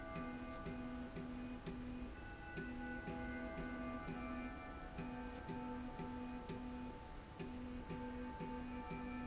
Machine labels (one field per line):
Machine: slide rail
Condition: normal